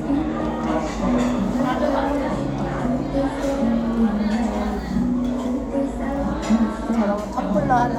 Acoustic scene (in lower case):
crowded indoor space